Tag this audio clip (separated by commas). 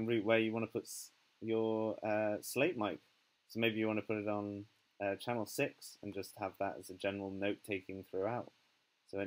Speech